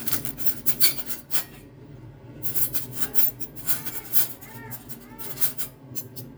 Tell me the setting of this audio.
kitchen